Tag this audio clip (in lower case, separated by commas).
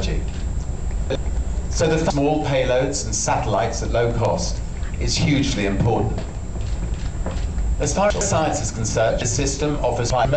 inside a large room or hall, speech